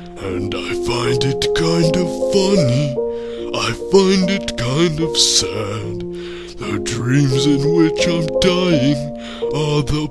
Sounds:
Music

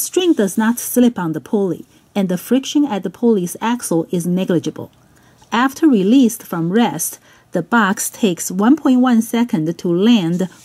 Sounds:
Speech

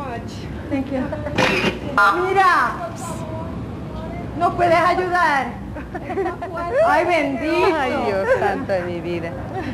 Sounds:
Speech

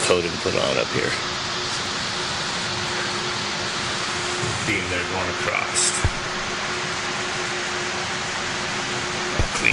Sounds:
Mechanical fan

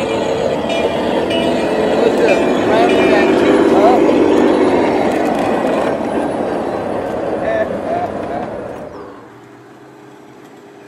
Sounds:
Speech

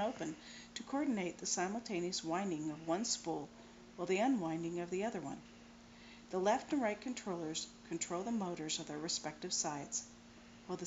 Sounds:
Speech

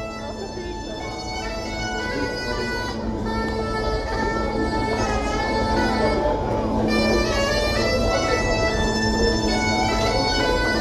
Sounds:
playing bagpipes

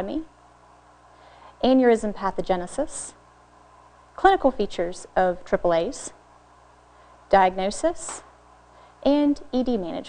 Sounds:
Speech

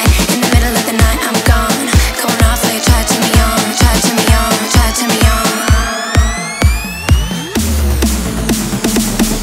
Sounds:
Music

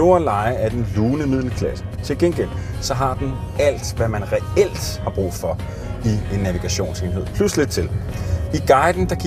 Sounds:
Music, Speech

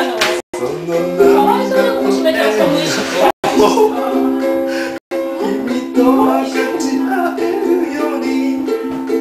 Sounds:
Ukulele

